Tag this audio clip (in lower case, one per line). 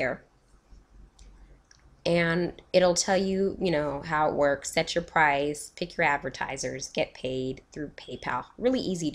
speech